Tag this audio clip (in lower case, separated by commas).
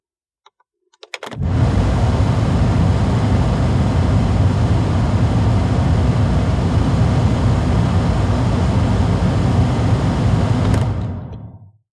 mechanical fan, mechanisms